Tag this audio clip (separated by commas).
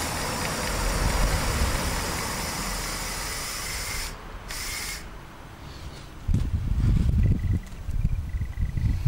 Vehicle, Engine